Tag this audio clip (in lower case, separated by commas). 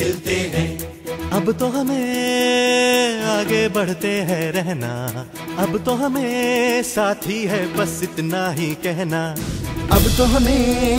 music of bollywood